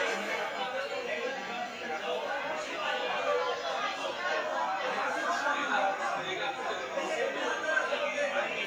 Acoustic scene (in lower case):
restaurant